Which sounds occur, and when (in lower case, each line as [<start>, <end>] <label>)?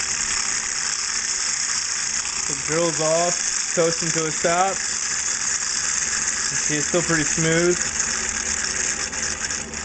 [0.00, 9.84] mechanisms
[2.44, 3.35] man speaking
[3.73, 4.72] man speaking
[6.49, 7.77] man speaking